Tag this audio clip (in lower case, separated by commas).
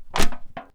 crushing